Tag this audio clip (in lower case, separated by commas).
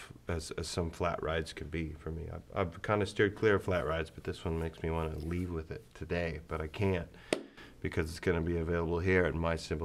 speech